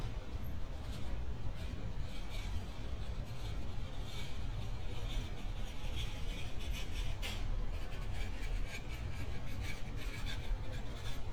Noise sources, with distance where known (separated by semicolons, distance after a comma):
background noise